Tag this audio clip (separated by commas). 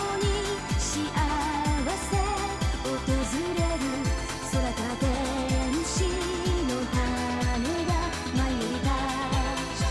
Pop music, Music